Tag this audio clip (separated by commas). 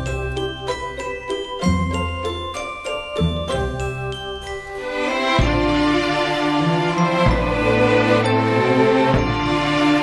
Jingle